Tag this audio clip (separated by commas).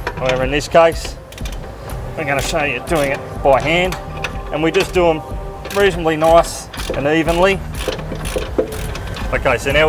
Music, Speech